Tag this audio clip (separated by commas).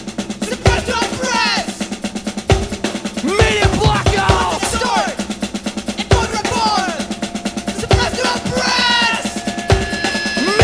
Drum kit, Snare drum, Drum roll, Percussion, Rimshot, Drum, Bass drum